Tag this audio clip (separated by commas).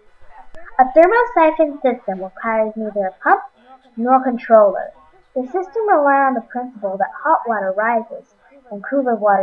Speech